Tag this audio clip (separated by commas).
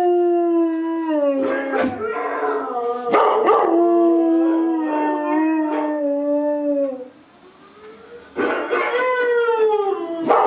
dog howling